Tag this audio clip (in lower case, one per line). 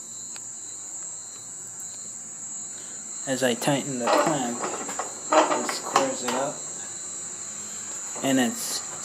speech